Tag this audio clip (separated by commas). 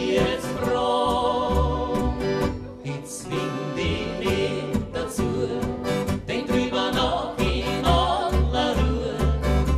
Music